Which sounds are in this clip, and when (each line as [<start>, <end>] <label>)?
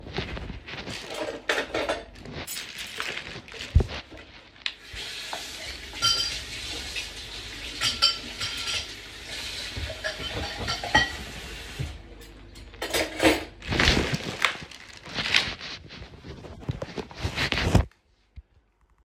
[1.17, 2.09] cutlery and dishes
[2.43, 2.95] cutlery and dishes
[4.91, 11.97] running water
[5.99, 6.42] cutlery and dishes
[7.80, 8.86] cutlery and dishes
[9.99, 11.10] cutlery and dishes
[12.83, 13.50] cutlery and dishes